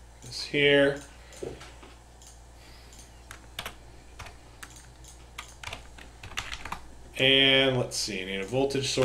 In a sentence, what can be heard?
A man gives a speech while typing on a keyboard